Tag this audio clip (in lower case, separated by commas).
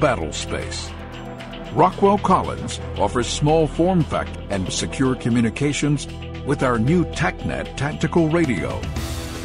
speech, music